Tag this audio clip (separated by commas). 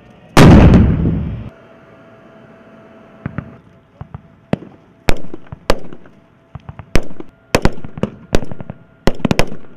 outside, rural or natural